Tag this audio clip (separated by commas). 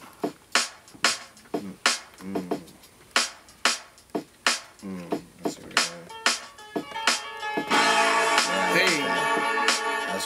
Music, Speech